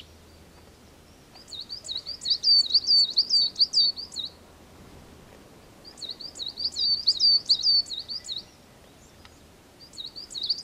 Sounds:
black capped chickadee calling

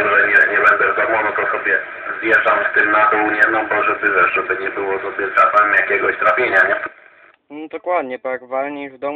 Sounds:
Radio, Speech

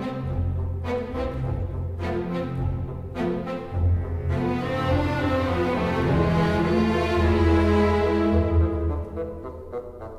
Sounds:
Music

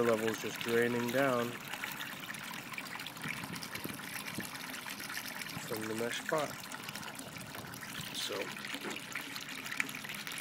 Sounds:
Water, Speech

